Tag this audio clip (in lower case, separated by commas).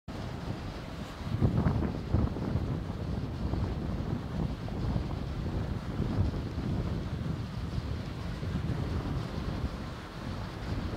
wind